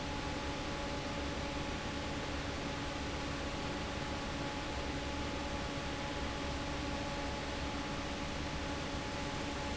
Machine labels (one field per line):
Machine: fan